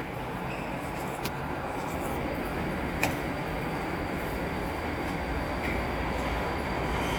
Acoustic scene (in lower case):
subway station